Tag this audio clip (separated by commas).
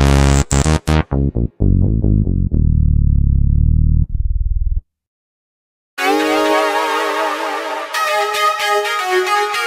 Keyboard (musical), Synthesizer, Music, Electric piano